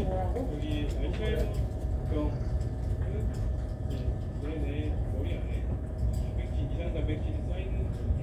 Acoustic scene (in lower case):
crowded indoor space